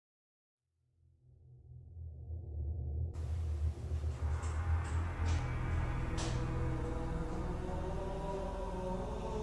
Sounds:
music, inside a small room

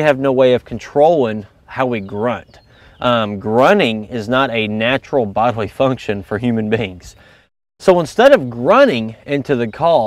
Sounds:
speech

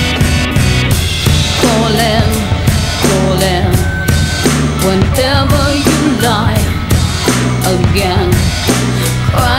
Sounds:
disco, music

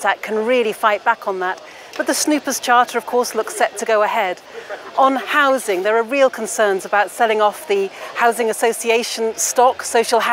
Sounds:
woman speaking, speech, narration

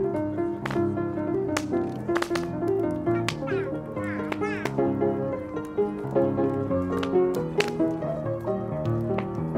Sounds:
music, fire, piano

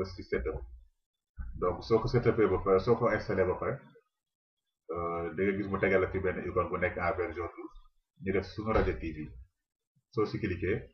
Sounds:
speech

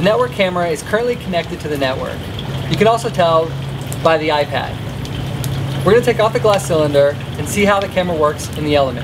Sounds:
speech, rain on surface

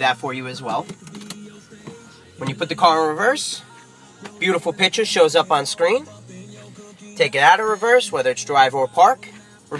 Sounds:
music, speech

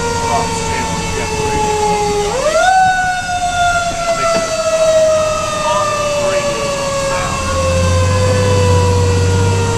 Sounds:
speech, vehicle, emergency vehicle, fire engine

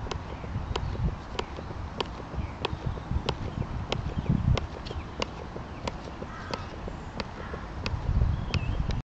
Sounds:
people running, outside, rural or natural, run

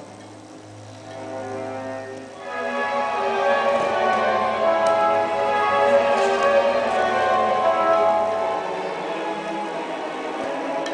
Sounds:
music

